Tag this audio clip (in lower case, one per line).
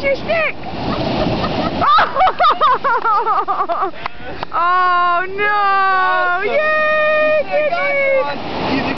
speech